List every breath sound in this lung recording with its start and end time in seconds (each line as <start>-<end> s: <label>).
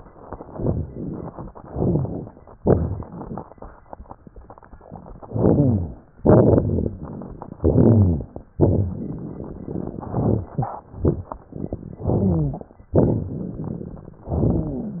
0.53-1.50 s: inhalation
0.53-1.50 s: rhonchi
1.59-2.32 s: exhalation
1.59-2.32 s: crackles
2.58-3.09 s: rhonchi
2.58-3.44 s: inhalation
5.24-6.00 s: inhalation
5.24-6.00 s: crackles
6.21-6.96 s: exhalation
6.21-6.96 s: crackles
7.59-8.35 s: inhalation
7.59-8.35 s: crackles
8.60-10.08 s: exhalation
8.60-10.08 s: crackles
10.11-10.87 s: inhalation
10.11-10.87 s: crackles
10.93-11.39 s: exhalation
10.93-11.39 s: crackles
12.01-12.77 s: inhalation
12.01-12.77 s: rhonchi
12.96-14.23 s: exhalation
12.96-14.23 s: crackles